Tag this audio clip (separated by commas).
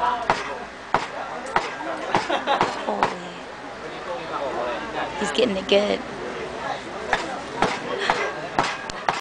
Speech